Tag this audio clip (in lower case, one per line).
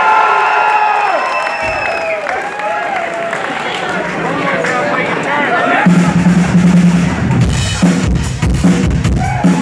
speech
music